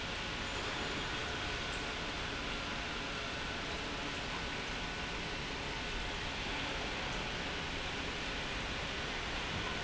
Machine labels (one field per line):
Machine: pump